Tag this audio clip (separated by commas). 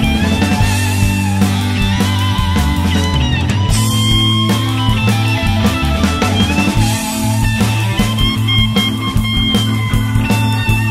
Rock music, Guitar, Psychedelic rock, Music, Musical instrument